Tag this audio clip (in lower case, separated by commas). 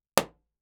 explosion